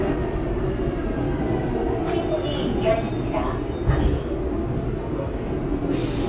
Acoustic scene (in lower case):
subway train